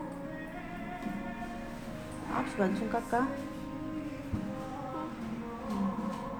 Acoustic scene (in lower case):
crowded indoor space